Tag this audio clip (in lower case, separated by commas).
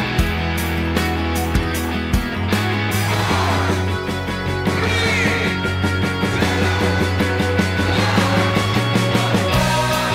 speech, music